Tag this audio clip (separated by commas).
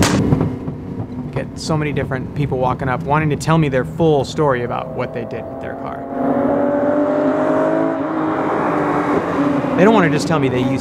Race car, Car, Vehicle